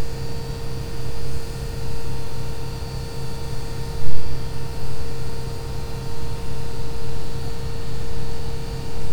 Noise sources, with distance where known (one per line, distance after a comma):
unidentified powered saw, near